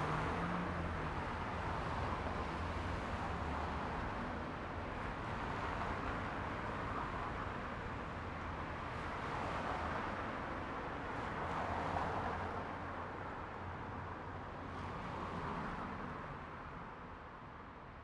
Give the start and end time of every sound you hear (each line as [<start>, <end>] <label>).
[0.00, 1.45] bus
[0.00, 1.45] bus engine accelerating
[0.00, 17.08] car
[0.00, 17.08] car wheels rolling
[14.60, 16.35] car engine accelerating